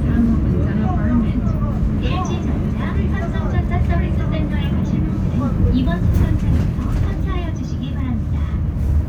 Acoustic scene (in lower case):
bus